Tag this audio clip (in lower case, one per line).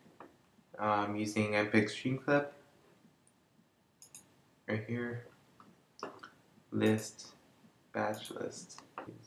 speech